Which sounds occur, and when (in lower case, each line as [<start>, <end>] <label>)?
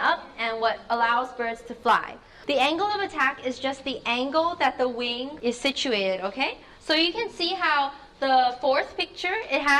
[0.00, 0.19] woman speaking
[0.00, 9.75] background noise
[0.36, 0.71] woman speaking
[0.83, 2.14] woman speaking
[2.14, 2.42] breathing
[2.45, 6.54] woman speaking
[6.53, 6.81] breathing
[6.82, 8.01] woman speaking
[7.12, 7.61] speech
[7.96, 8.16] breathing
[8.20, 9.75] woman speaking